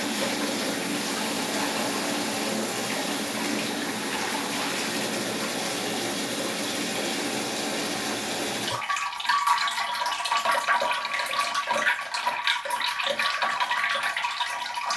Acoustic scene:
restroom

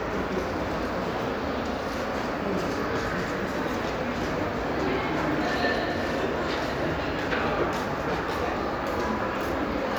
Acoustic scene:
crowded indoor space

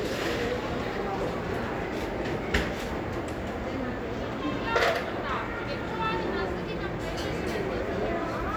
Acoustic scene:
cafe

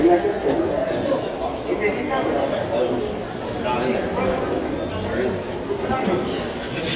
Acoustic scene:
crowded indoor space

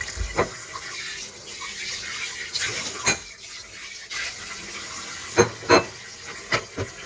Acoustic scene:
kitchen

